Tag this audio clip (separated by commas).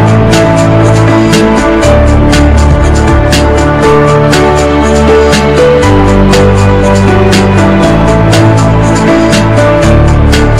Music